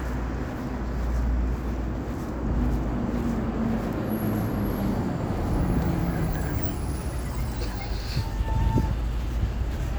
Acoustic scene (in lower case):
street